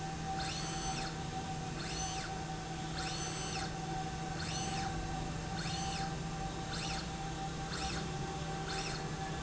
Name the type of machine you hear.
slide rail